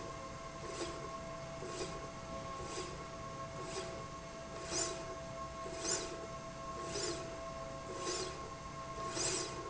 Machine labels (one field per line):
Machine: slide rail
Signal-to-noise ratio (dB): 0 dB